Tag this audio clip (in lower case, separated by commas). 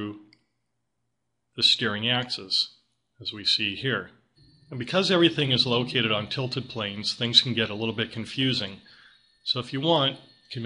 speech